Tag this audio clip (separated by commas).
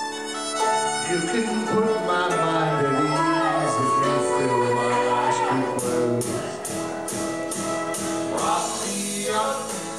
Male singing, Music